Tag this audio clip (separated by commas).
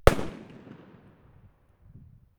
Explosion, Fireworks